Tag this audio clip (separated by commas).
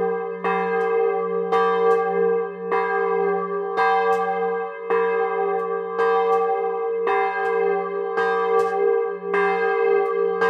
church bell ringing